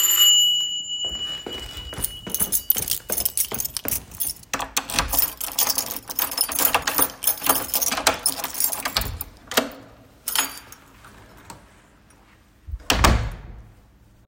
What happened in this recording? The doorbell rang so I walked towards the door with my keychain already in my hand. I unlocked and opened the door but closed it again right after when I saw no one.